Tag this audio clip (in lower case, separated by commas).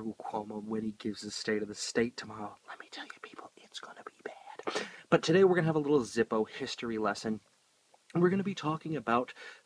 speech, inside a small room, whispering